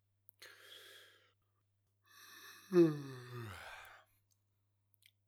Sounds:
Human voice

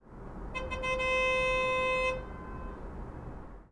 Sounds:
roadway noise, Motor vehicle (road), Vehicle, Car, car horn, Alarm

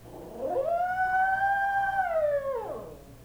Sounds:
pets, Dog, Animal

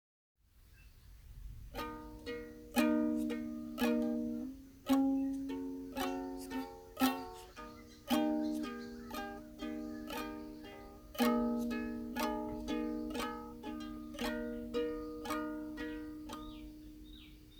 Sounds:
Musical instrument, Music, Plucked string instrument

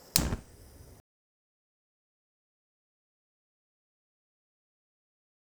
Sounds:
Fire

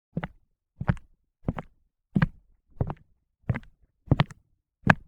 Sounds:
footsteps

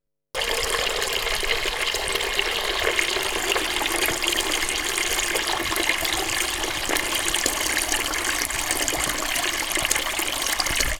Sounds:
home sounds, Water tap, Sink (filling or washing)

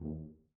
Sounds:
Music, Brass instrument, Musical instrument

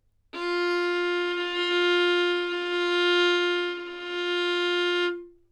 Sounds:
Bowed string instrument, Music, Musical instrument

